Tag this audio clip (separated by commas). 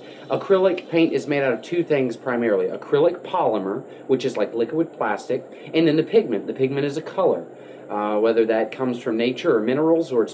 Speech